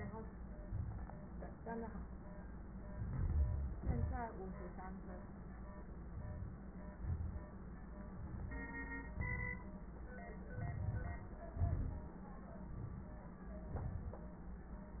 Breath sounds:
Inhalation: 2.92-3.72 s, 6.17-6.57 s, 8.08-8.61 s, 10.57-11.29 s, 12.70-13.28 s
Exhalation: 3.78-4.25 s, 6.96-7.50 s, 9.19-9.79 s, 11.59-12.18 s, 13.74-14.21 s

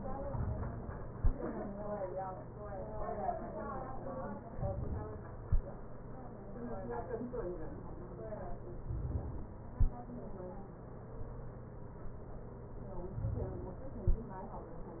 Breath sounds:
Inhalation: 4.51-5.33 s, 8.86-9.74 s, 13.20-14.03 s

